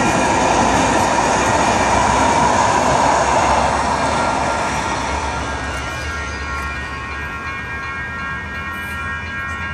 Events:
[0.00, 9.73] train
[5.41, 9.73] bell

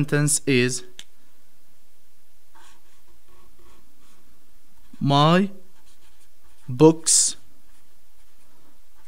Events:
[0.00, 0.83] male speech
[0.00, 9.05] background noise
[0.93, 1.03] tick
[2.50, 4.21] writing
[4.73, 5.10] writing
[4.96, 5.54] male speech
[5.53, 6.75] writing
[6.64, 7.36] male speech
[7.61, 9.05] writing

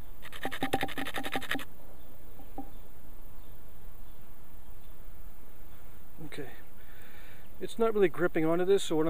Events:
[0.00, 0.15] tweet
[0.00, 9.05] background noise
[0.21, 1.64] generic impact sounds
[1.93, 2.11] tweet
[2.31, 2.39] generic impact sounds
[2.31, 2.48] tweet
[2.51, 2.62] generic impact sounds
[2.71, 2.83] tweet
[3.39, 3.59] tweet
[4.04, 4.18] tweet
[4.61, 4.88] tweet
[5.65, 5.81] tweet
[6.17, 6.61] male speech
[6.68, 7.45] breathing
[7.41, 7.58] tweet
[7.58, 9.05] male speech

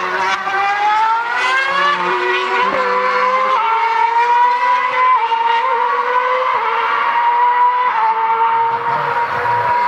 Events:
[0.01, 9.85] race car

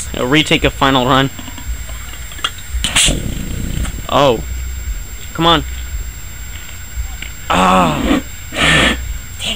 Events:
[0.00, 9.55] mechanisms
[0.11, 1.33] man speaking
[1.33, 1.65] generic impact sounds
[1.87, 2.58] generic impact sounds
[2.79, 3.85] man speaking
[3.72, 3.92] generic impact sounds
[4.07, 4.44] man speaking
[5.37, 5.64] man speaking
[7.19, 7.36] generic impact sounds
[7.45, 8.20] human sounds
[8.53, 8.98] breathing
[9.37, 9.55] breathing

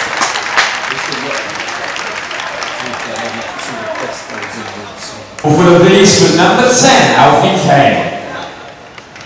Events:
[0.00, 5.42] applause
[0.00, 9.25] crowd
[0.84, 2.17] male speech
[2.82, 5.12] male speech
[5.36, 8.50] male speech
[8.37, 9.25] applause

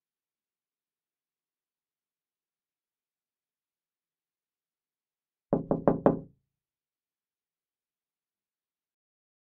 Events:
[5.49, 6.24] knock

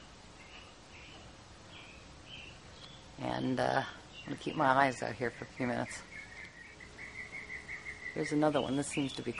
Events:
[0.00, 9.35] wind
[0.35, 0.67] tweet
[0.89, 1.23] tweet
[1.67, 2.05] tweet
[2.23, 2.53] tweet
[2.73, 3.02] tweet
[3.06, 3.83] female speech
[3.22, 3.49] tweet
[3.66, 3.95] tweet
[4.11, 8.38] tweet
[4.17, 5.93] female speech
[8.14, 9.35] female speech
[8.55, 8.71] tweet
[8.87, 9.01] tweet
[9.29, 9.35] tweet

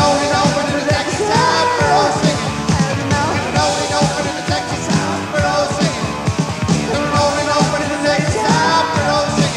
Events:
[0.00, 2.33] male singing
[0.00, 9.55] music
[2.68, 6.00] male singing
[6.88, 9.55] male singing

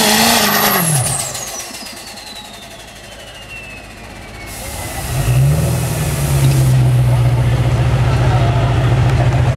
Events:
[0.00, 0.95] revving
[0.00, 9.55] motor vehicle (road)
[1.21, 4.99] tire squeal
[4.29, 9.53] revving
[7.10, 9.13] speech

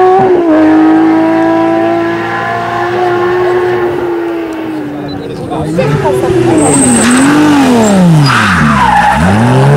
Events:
[0.00, 5.18] revving
[0.00, 9.75] race car
[1.39, 1.47] tick
[4.25, 4.34] tick
[4.41, 7.22] hubbub
[4.51, 4.58] tick
[5.07, 5.17] bleep
[5.76, 9.75] revving
[6.03, 9.75] tire squeal
[8.54, 9.43] hubbub

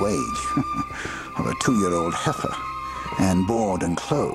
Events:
[0.00, 0.34] male speech
[0.00, 4.34] music
[0.50, 0.63] giggle
[0.69, 0.80] giggle
[0.88, 1.32] breathing
[1.34, 2.62] male speech
[3.08, 4.34] male speech

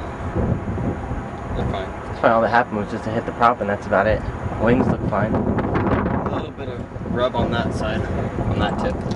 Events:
[0.01, 9.15] wind
[1.49, 1.82] man speaking
[2.19, 4.12] man speaking
[4.50, 5.33] man speaking
[6.26, 8.01] man speaking
[8.48, 9.03] man speaking

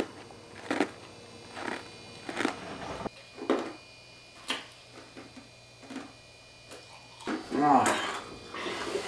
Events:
[0.00, 0.24] mastication
[0.00, 9.05] mechanisms
[0.53, 0.84] mastication
[1.51, 1.80] mastication
[2.25, 3.10] mastication
[3.42, 3.74] mastication
[4.36, 4.63] mastication
[4.93, 5.42] mastication
[5.82, 6.06] mastication
[6.66, 6.83] mastication
[7.22, 7.90] male speech
[7.86, 8.20] generic impact sounds
[8.50, 9.05] generic impact sounds

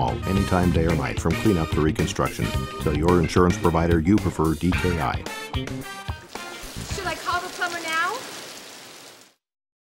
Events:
[0.00, 2.62] man speaking
[0.00, 6.99] music
[2.76, 5.17] man speaking
[6.30, 9.33] water
[6.89, 8.19] female speech

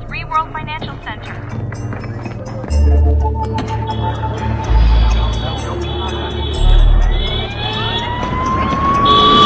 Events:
[0.00, 9.45] music
[1.05, 1.31] female speech
[1.48, 2.74] footsteps
[3.39, 9.45] roadway noise
[3.54, 3.69] generic impact sounds
[4.05, 8.87] hubbub
[6.82, 9.45] police car (siren)
[9.02, 9.45] vehicle horn

